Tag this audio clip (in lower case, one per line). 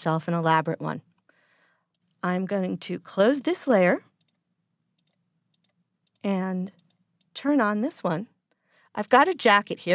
speech